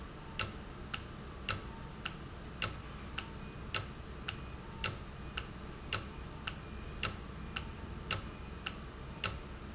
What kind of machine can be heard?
valve